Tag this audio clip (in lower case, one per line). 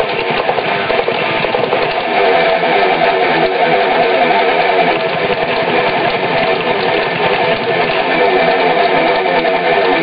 music
musical instrument
electric guitar